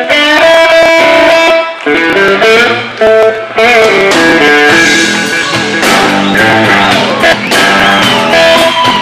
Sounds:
steel guitar
music

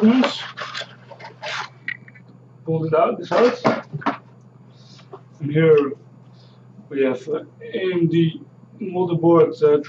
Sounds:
speech

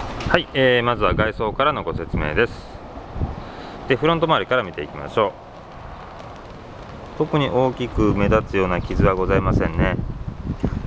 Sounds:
speech

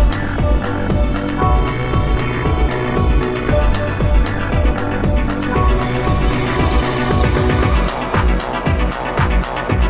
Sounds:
music
pop music

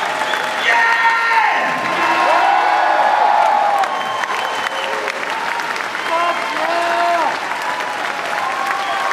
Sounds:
applause

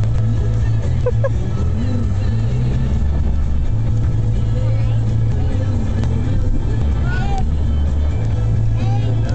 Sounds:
speech
car
vehicle
music

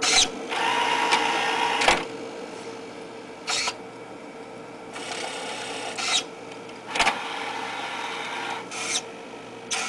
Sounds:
printer

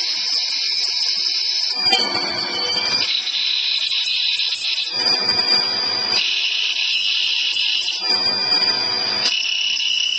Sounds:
inside a large room or hall

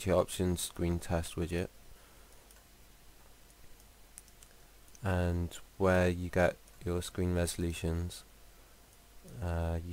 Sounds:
speech

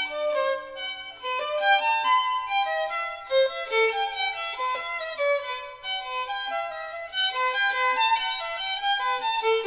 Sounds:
violin
music
musical instrument

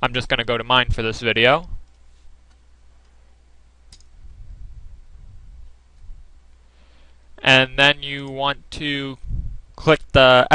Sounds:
speech

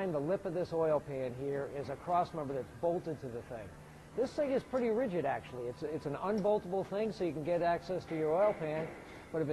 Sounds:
speech

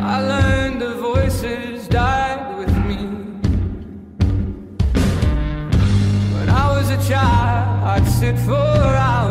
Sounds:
music

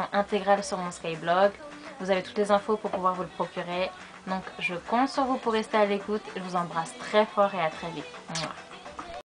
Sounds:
music
speech

